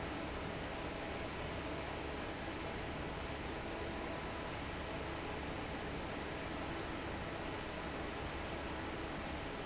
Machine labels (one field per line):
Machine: fan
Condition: normal